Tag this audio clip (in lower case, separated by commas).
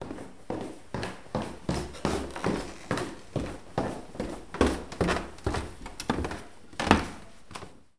walk